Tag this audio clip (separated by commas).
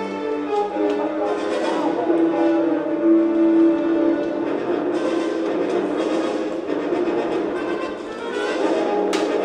Music